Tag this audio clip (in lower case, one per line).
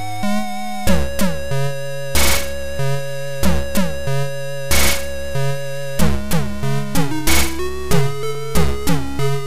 music
video game music